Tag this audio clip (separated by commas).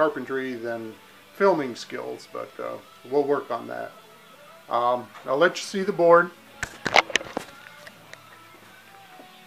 Speech, Music